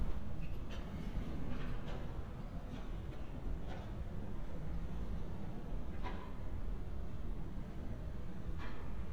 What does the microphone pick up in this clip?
background noise